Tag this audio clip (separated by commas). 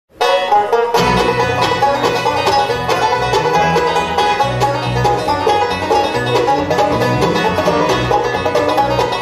Banjo, Plucked string instrument, Music, Orchestra, Classical music, Musical instrument